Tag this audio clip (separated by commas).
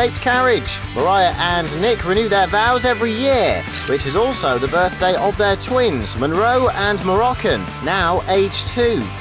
Music, Speech